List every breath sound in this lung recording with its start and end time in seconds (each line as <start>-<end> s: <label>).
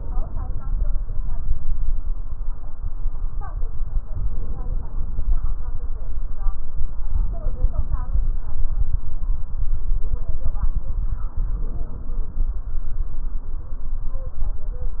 4.11-5.46 s: inhalation
7.11-8.46 s: inhalation
11.31-12.55 s: inhalation